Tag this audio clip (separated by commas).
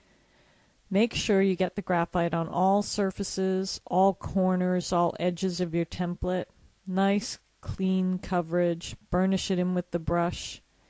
Speech